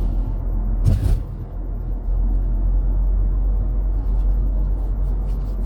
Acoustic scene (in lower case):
car